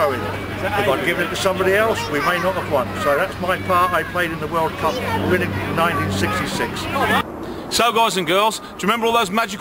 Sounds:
Shout, Speech

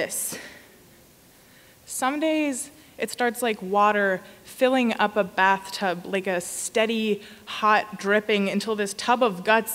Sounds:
Speech

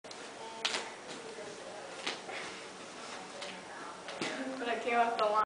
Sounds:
Speech

